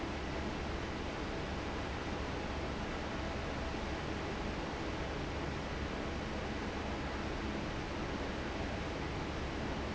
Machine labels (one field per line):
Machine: fan